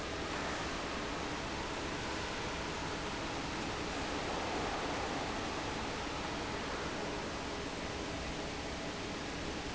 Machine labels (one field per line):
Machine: fan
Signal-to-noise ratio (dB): -6 dB